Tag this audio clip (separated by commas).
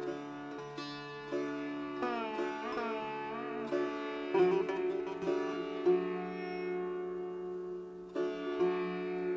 Guitar, Musical instrument, Sitar, Music, Plucked string instrument